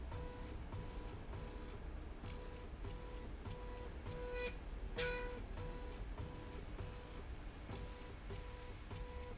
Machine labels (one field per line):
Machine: slide rail